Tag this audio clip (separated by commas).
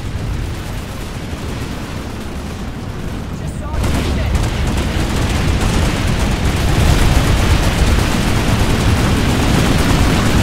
Speech